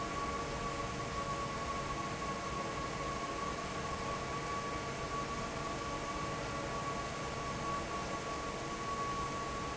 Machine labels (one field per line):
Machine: fan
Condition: normal